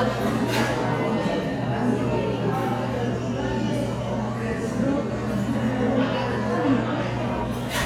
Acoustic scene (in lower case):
crowded indoor space